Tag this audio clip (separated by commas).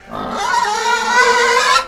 Animal, livestock